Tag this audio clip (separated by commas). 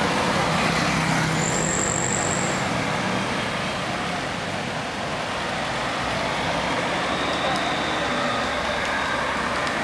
Car, Traffic noise, Vehicle